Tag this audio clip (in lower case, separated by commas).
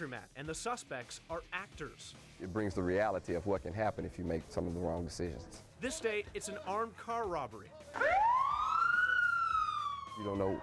speech, music